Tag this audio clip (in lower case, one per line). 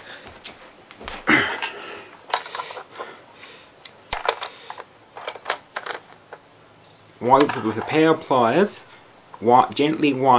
speech